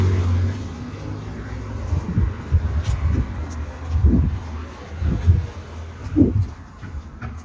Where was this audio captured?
in a residential area